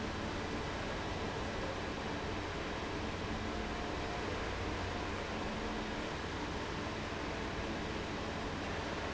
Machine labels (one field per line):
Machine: fan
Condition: abnormal